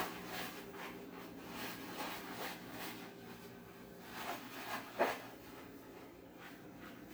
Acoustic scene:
kitchen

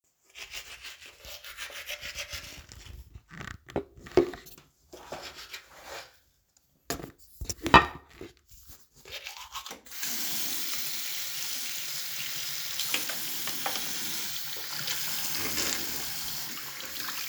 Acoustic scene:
restroom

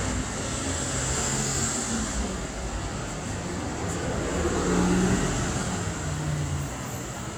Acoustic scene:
street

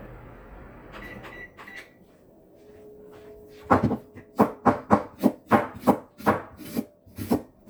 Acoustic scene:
kitchen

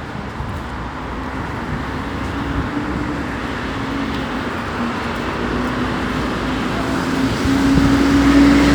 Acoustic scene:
street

